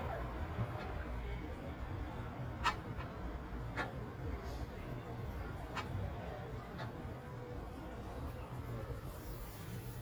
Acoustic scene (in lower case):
residential area